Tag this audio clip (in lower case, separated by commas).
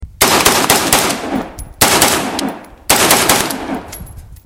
gunfire, explosion